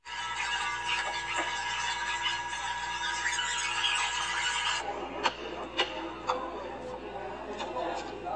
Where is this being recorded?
in a cafe